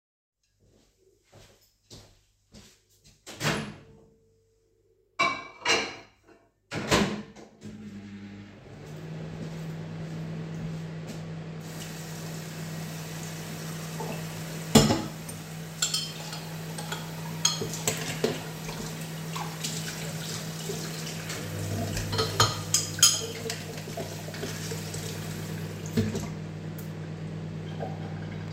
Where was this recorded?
kitchen